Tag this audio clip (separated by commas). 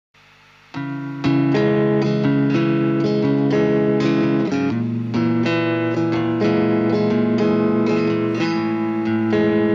Music, Reverberation